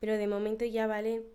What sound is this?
speech